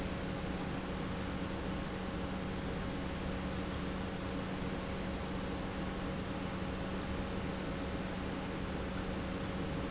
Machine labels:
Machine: pump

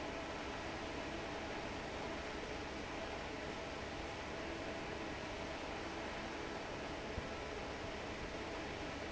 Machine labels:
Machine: fan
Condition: normal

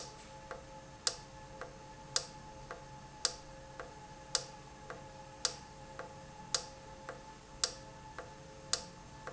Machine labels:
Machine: valve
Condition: normal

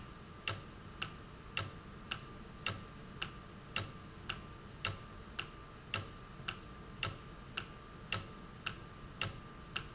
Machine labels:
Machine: valve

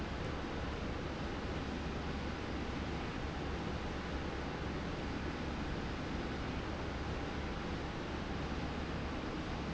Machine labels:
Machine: slide rail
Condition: normal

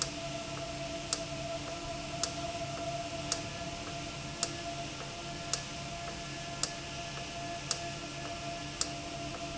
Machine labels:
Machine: valve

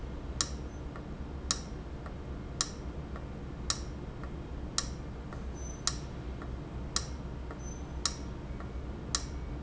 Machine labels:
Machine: valve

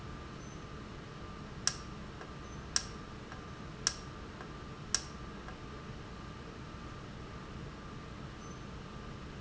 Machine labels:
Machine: valve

